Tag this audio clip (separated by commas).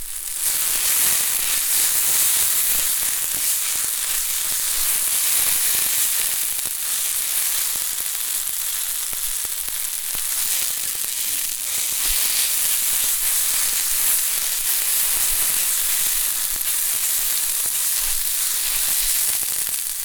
Frying (food), Domestic sounds